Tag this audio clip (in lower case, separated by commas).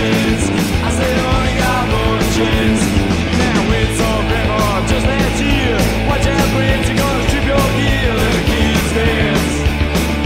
music